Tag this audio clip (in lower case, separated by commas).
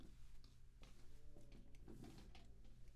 walk